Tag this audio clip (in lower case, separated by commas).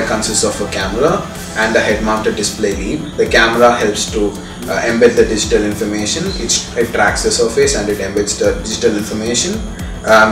speech, music